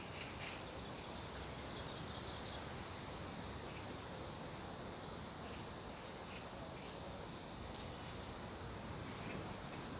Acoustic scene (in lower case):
park